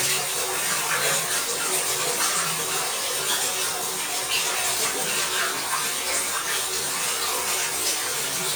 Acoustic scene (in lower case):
restroom